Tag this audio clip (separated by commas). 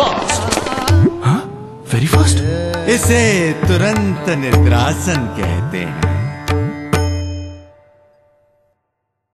Speech, Music